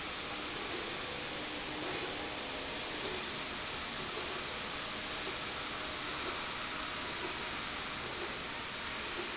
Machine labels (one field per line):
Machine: slide rail